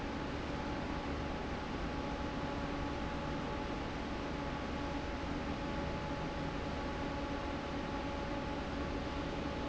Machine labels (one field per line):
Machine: fan